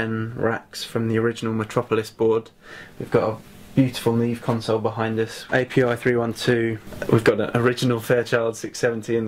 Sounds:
Speech

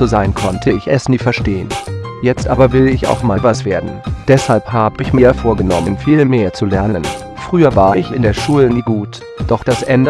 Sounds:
Music

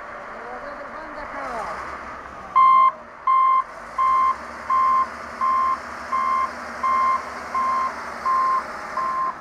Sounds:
Speech

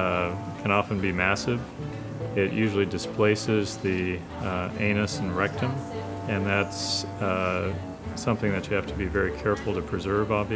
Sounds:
Speech

